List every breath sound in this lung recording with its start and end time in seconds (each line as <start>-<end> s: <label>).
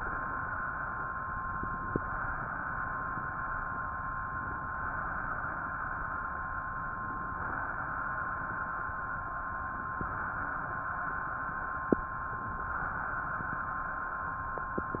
1.59-2.49 s: inhalation
4.58-5.55 s: inhalation
6.88-7.84 s: inhalation
9.91-10.81 s: inhalation
12.49-13.45 s: inhalation